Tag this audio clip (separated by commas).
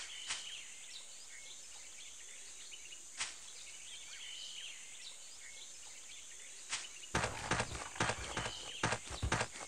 Environmental noise